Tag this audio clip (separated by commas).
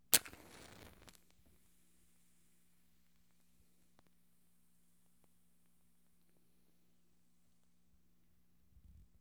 Fire